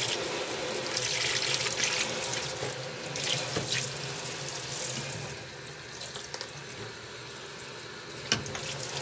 A water tap running